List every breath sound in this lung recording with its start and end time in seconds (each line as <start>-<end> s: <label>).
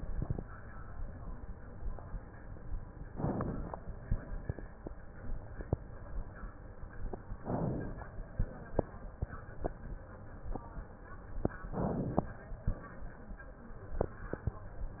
3.06-3.98 s: crackles
3.06-3.99 s: inhalation
7.36-8.30 s: inhalation
11.56-12.13 s: inhalation